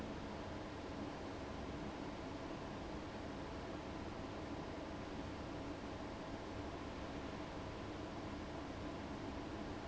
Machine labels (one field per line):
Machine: fan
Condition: abnormal